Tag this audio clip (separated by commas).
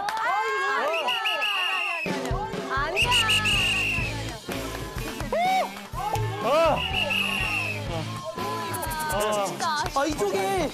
eagle screaming